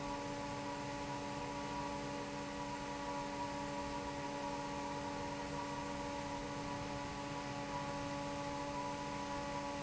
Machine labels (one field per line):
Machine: fan